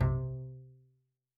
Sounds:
musical instrument, bowed string instrument, music

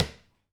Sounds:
tap

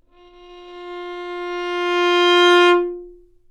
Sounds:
musical instrument, bowed string instrument, music

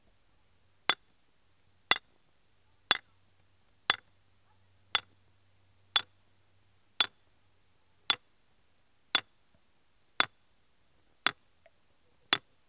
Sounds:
hammer, tools

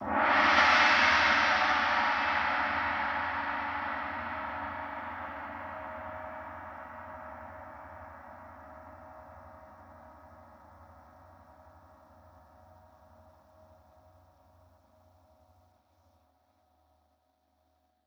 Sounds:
gong, musical instrument, percussion, music

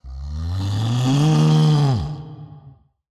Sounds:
livestock, animal

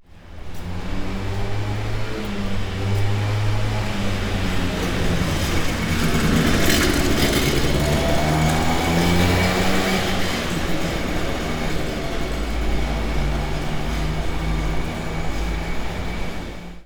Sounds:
vehicle, engine

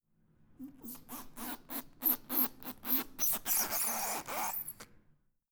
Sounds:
squeak

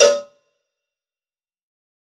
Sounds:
bell, cowbell

